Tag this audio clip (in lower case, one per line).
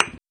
thud